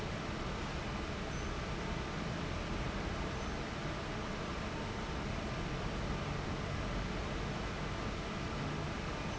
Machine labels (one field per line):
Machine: fan